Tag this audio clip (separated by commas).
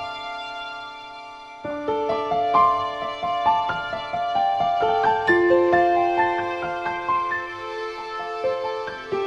Music